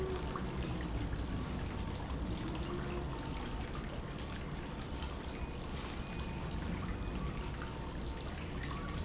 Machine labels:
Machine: pump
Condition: normal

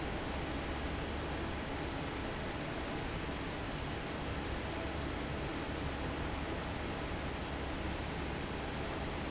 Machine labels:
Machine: fan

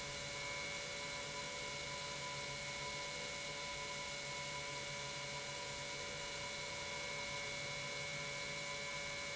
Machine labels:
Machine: pump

